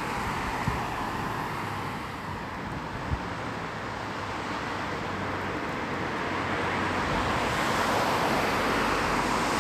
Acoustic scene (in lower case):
street